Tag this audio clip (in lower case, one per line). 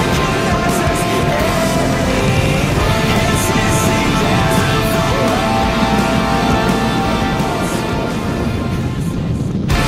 exciting music
music